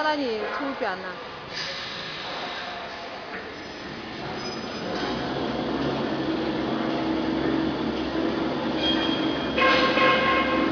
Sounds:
speech, printer

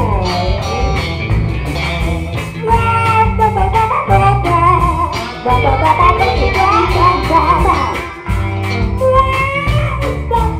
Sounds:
blues, music, rock music, musical instrument

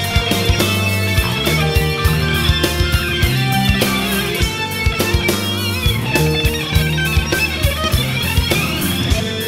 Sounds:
progressive rock, heavy metal, music

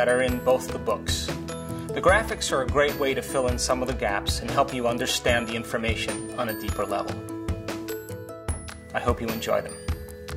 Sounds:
speech, music

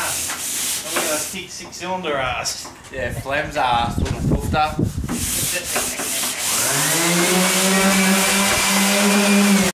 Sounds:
speech

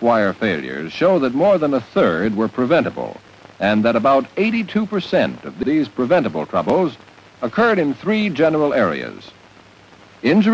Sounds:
speech

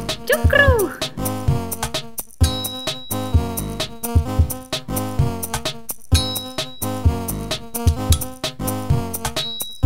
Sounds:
music

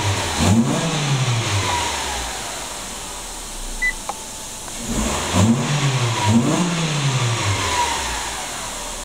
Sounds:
engine, vroom, medium engine (mid frequency), car, vehicle, idling

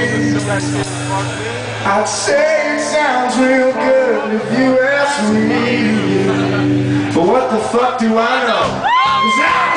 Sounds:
speech, music

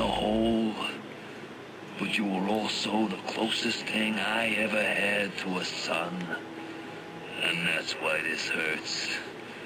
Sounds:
speech, radio

